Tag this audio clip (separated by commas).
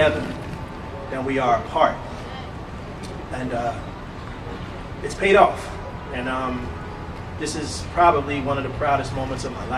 Speech